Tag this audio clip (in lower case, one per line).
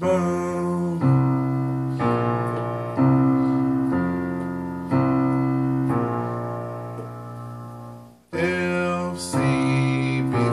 music